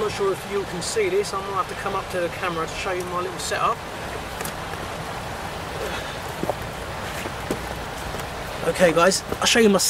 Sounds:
outside, rural or natural, Speech

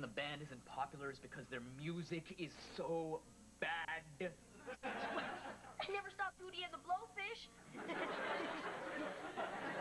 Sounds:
Speech

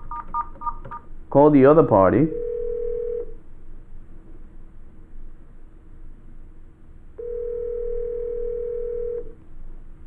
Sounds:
Speech, Telephone

